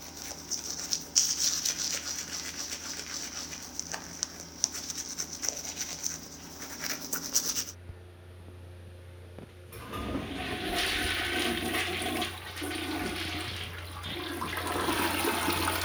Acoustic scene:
restroom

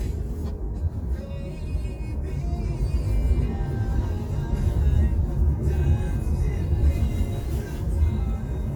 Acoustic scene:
car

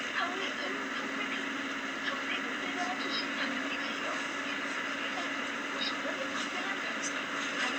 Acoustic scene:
bus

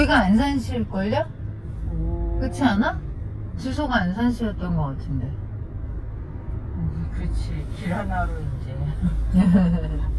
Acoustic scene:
car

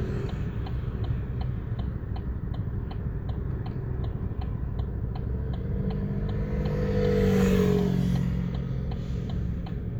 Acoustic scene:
car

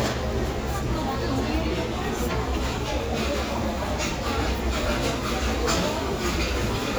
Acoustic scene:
crowded indoor space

